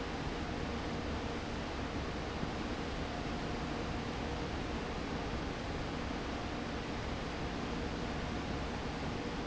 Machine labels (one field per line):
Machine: fan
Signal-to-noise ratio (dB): -6 dB